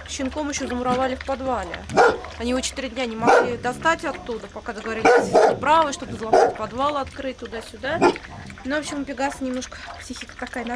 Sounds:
animal, speech, pets, dog

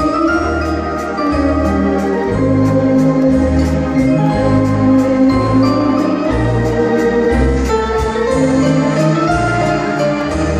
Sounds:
music, musical instrument, keyboard (musical)

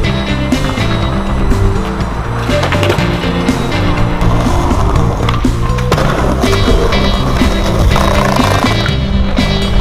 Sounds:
skateboarding

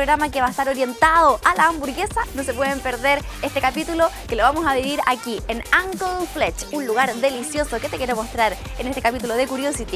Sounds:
music, speech

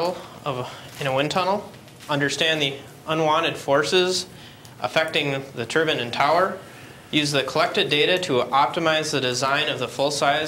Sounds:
speech

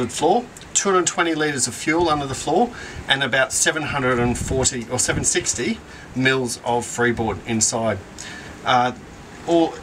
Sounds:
speech

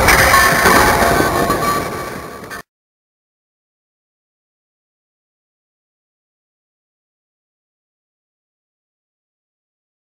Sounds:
smash

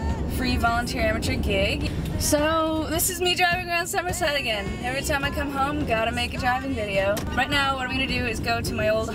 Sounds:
vehicle, speech, music, car, motor vehicle (road)

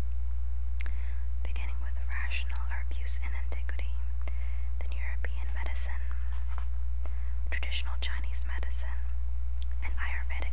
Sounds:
whispering, speech

